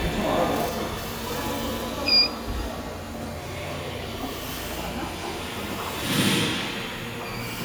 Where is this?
in a subway station